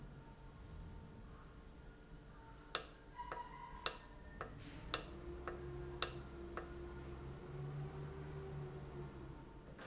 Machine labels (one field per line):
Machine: valve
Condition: normal